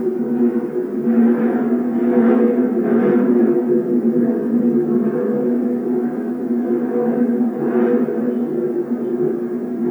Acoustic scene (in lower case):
subway train